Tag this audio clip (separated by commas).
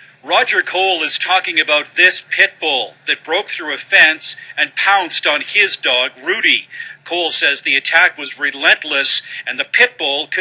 Speech